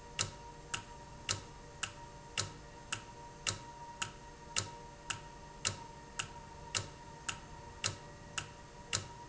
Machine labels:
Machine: valve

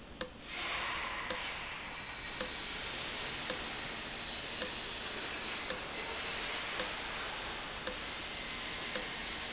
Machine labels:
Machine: valve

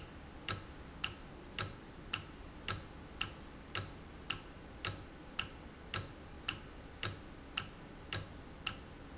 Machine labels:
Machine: valve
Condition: normal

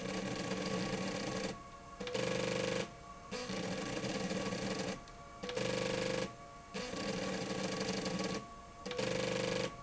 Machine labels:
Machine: slide rail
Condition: abnormal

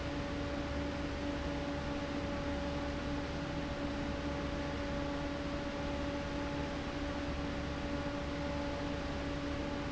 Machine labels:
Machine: fan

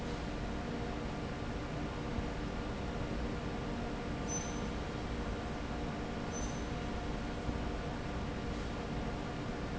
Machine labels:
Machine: fan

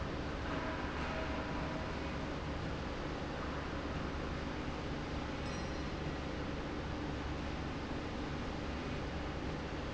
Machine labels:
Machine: slide rail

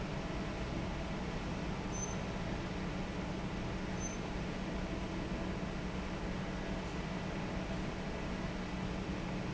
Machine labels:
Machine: fan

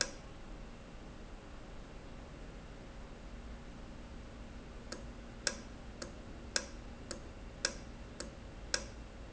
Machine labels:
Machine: valve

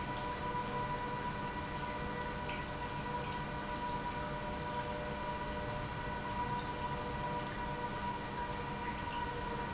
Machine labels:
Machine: pump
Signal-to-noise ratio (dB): -6 dB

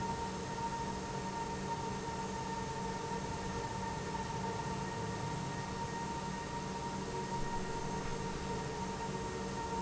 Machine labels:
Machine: pump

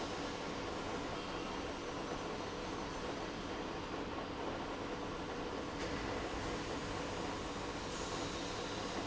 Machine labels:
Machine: pump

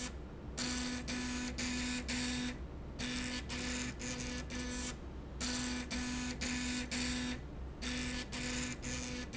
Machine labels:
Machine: slide rail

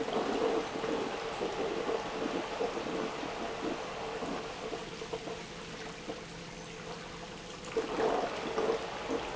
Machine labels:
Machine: pump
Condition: abnormal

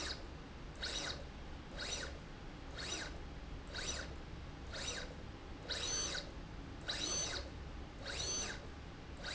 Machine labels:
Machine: slide rail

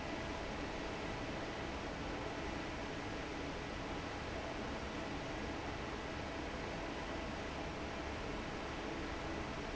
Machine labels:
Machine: fan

